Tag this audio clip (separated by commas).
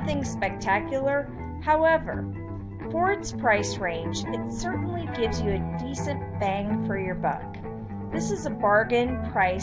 Narration